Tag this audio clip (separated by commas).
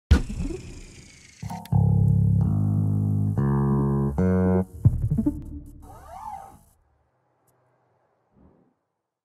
Guitar, Plucked string instrument, Musical instrument, Music